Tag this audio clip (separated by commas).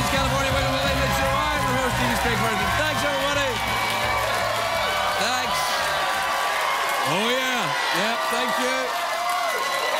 monologue, Music, Speech